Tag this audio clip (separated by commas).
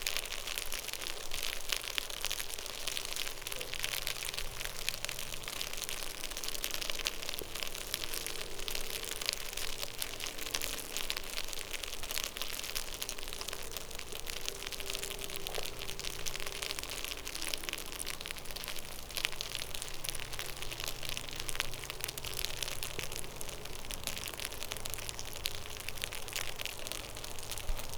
Insect, Wild animals, Animal